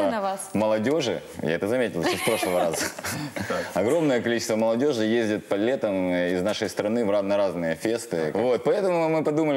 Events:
[0.00, 0.36] woman speaking
[0.00, 9.55] background noise
[0.00, 9.55] conversation
[0.51, 1.17] male speech
[1.37, 2.87] male speech
[1.97, 2.90] giggle
[2.64, 2.86] human sounds
[2.97, 3.72] human sounds
[3.71, 9.55] male speech

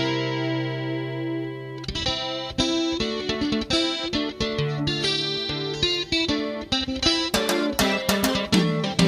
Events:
[0.00, 9.05] music

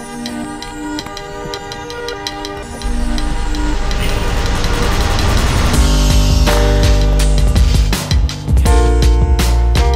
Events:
[0.00, 9.95] music

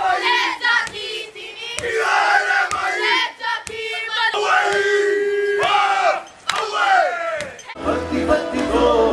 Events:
[0.00, 7.73] background noise
[0.00, 9.12] choir
[0.83, 0.98] music
[1.76, 1.92] music
[2.65, 2.85] music
[3.63, 3.78] music
[4.70, 4.83] music
[5.58, 5.76] music
[6.22, 6.38] generic impact sounds
[6.43, 6.64] clapping
[7.34, 7.50] music
[7.54, 7.67] generic impact sounds
[7.73, 9.12] music

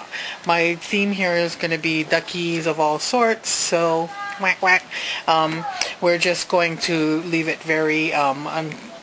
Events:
[0.00, 0.44] breathing
[0.00, 9.02] background noise
[0.42, 4.09] female speech
[4.40, 4.79] female speech
[4.87, 5.26] breathing
[5.28, 5.88] female speech
[5.97, 8.81] female speech
[8.96, 9.02] female speech

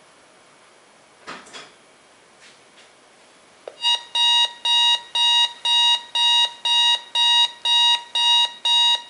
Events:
[0.00, 9.05] mechanisms
[1.23, 1.65] generic impact sounds
[2.31, 2.54] surface contact
[2.68, 2.89] surface contact
[3.61, 3.74] tick
[3.78, 9.05] alarm clock

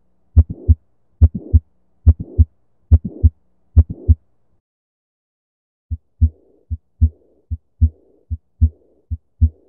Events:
[0.00, 4.62] background noise
[0.37, 0.77] heartbeat
[1.22, 1.62] heartbeat
[2.06, 2.46] heartbeat
[2.92, 3.33] heartbeat
[3.76, 4.19] heartbeat
[5.90, 6.33] heartbeat
[5.90, 9.65] background noise
[6.72, 7.15] heartbeat
[7.52, 7.94] heartbeat
[8.31, 8.73] heartbeat
[9.12, 9.53] heartbeat

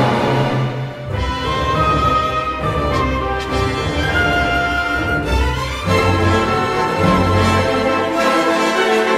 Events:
[0.00, 9.15] music

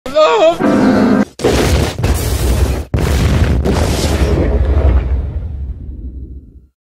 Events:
[0.02, 0.55] human voice
[0.02, 6.74] background noise
[0.57, 1.21] explosion
[1.37, 6.71] explosion

